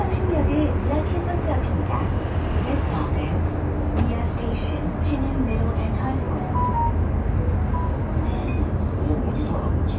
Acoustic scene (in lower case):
bus